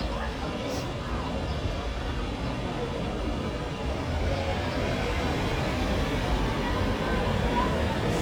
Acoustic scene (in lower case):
residential area